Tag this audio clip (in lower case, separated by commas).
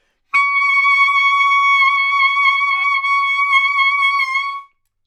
woodwind instrument, music, musical instrument